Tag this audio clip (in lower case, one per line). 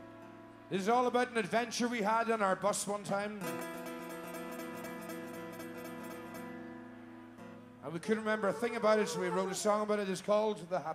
speech
music